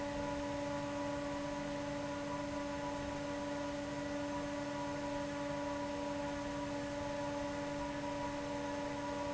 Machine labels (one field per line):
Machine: fan